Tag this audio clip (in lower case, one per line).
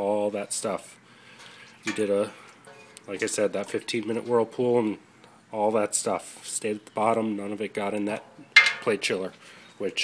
speech